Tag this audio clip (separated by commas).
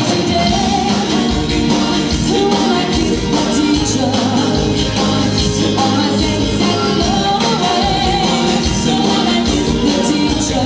Singing, Vocal music